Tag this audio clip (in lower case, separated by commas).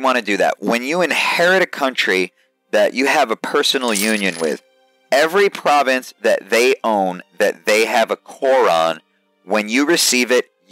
music, speech